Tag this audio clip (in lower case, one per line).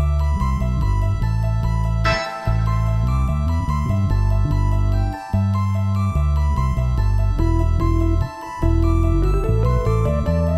music